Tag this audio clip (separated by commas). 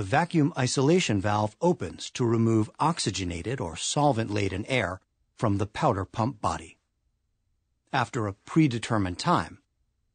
Speech